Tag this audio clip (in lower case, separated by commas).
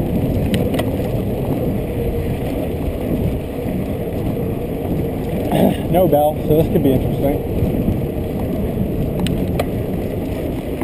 speech